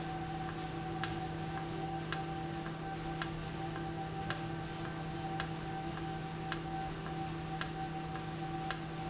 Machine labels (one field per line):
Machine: valve